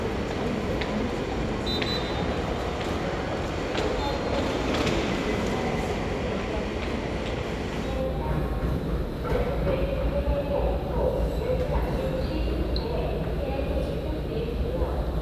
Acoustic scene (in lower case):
subway station